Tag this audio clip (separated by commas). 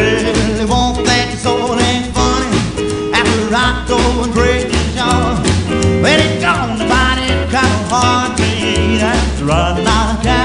Music